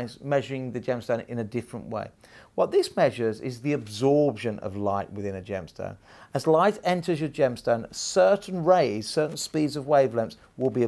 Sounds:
speech

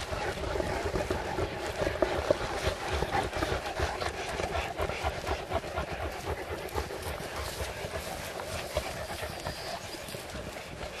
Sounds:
walk

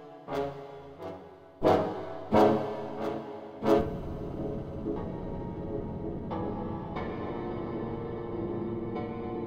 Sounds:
soundtrack music
music

